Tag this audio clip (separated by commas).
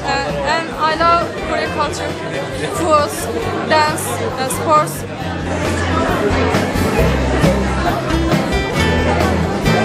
Music, Speech